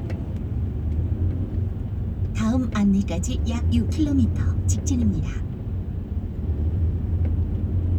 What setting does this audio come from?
car